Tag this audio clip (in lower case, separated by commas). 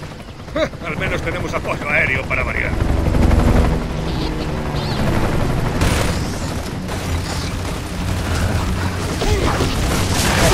vehicle, speech